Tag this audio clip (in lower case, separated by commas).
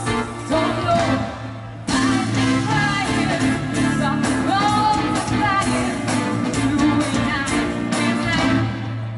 music